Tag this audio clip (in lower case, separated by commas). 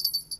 bell